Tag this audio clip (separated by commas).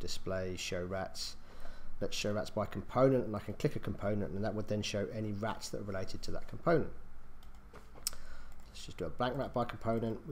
Speech